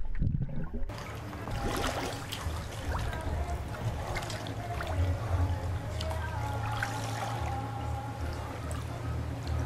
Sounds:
Gurgling, Music

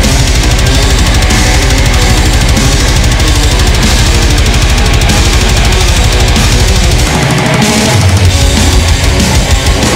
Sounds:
Musical instrument, Music, Guitar, Plucked string instrument

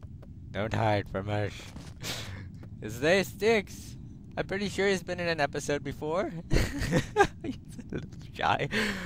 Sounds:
Speech

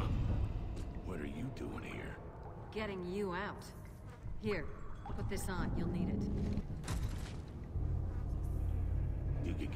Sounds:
Speech

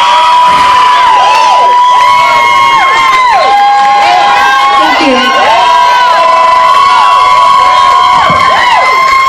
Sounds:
Crowd, Music, Speech, people crowd

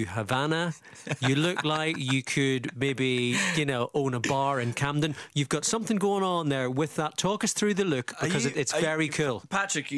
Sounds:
Speech, Radio

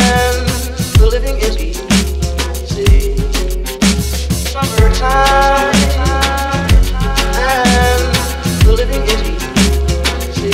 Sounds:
Music

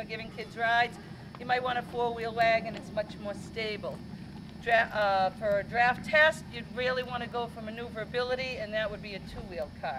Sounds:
Speech

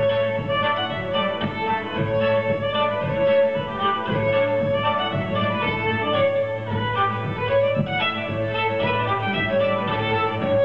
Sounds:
String section, Cello, Bowed string instrument, Music, Musical instrument

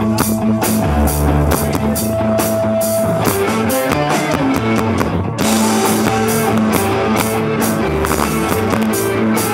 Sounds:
Music

